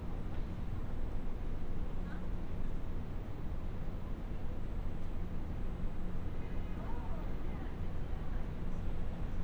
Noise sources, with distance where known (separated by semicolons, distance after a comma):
car horn, far; person or small group talking, far